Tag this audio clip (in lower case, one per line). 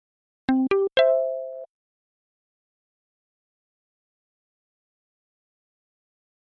ringtone
telephone
alarm